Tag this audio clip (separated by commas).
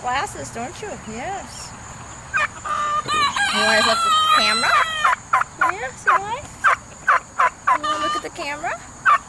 Crowing, Fowl, Chicken, Goose